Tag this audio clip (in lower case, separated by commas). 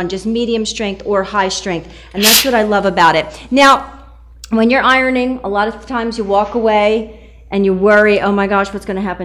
speech